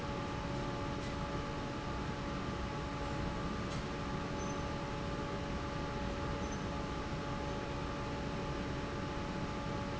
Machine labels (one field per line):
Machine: fan